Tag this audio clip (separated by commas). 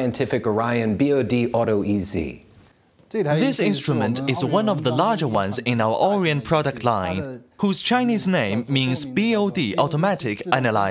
Speech